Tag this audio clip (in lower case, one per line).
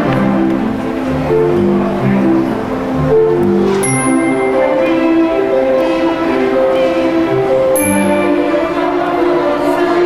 tender music
music